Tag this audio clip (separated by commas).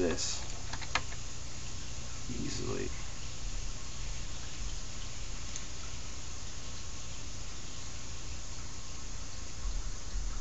inside a small room, Speech